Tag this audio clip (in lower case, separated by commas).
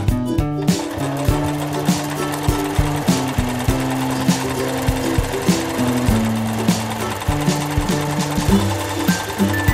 music, sewing machine